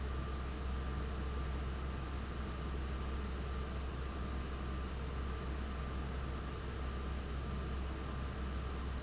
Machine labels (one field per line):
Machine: fan